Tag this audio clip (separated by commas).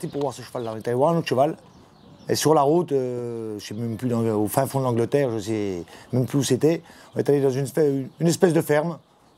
Speech